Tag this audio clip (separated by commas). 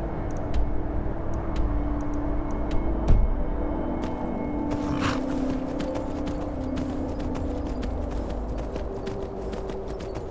Clip-clop, Music